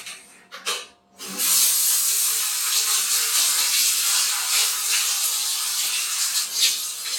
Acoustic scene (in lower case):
restroom